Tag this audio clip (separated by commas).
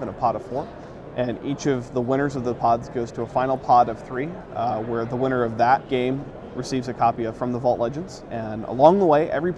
Speech, Music